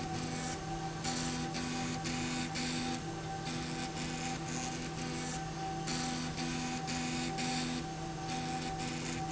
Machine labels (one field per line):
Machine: slide rail